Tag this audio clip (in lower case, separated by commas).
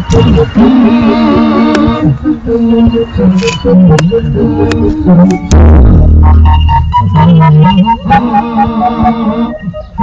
music, soundtrack music